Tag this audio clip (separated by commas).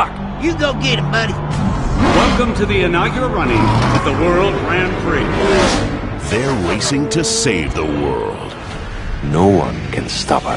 Car, Music, Speech